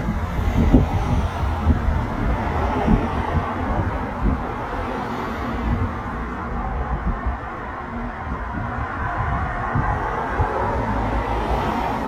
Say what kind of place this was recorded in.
street